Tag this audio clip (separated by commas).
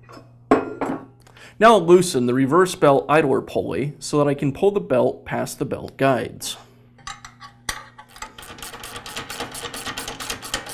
Speech